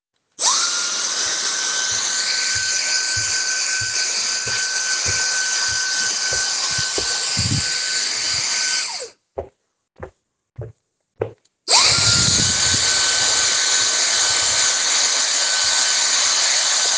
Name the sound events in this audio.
vacuum cleaner, footsteps